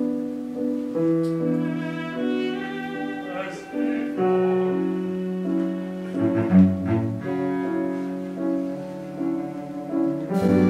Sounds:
music, opera, musical instrument, classical music, cello

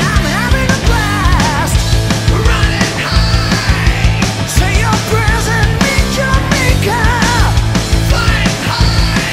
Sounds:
music

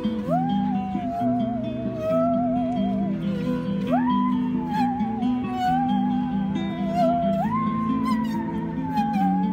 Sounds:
music, musical instrument

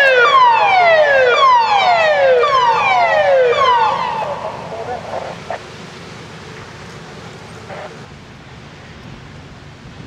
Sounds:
speech

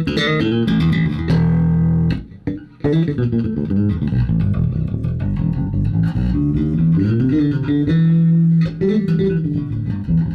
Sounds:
bass guitar, guitar, music, musical instrument, plucked string instrument

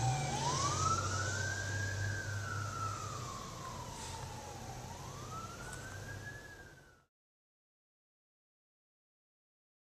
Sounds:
fire engine

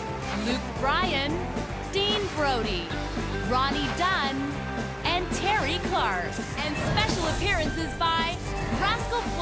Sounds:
music, speech, background music

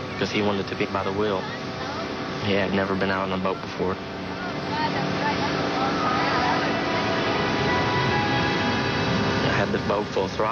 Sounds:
speech, vehicle, music

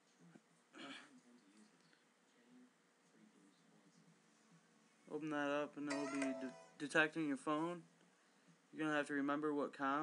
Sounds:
speech

